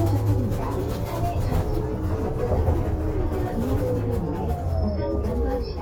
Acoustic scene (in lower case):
bus